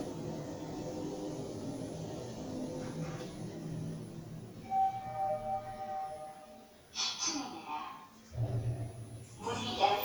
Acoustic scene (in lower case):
elevator